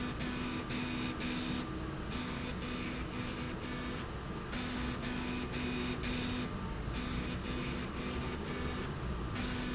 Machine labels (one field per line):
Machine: slide rail